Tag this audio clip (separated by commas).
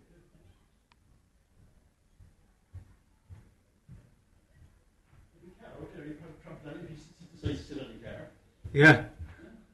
Speech